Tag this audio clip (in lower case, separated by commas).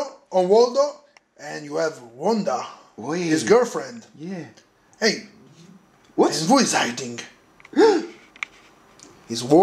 inside a small room, speech